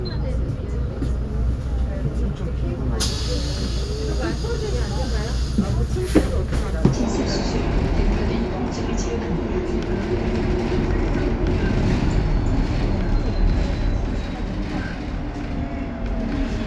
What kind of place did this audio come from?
bus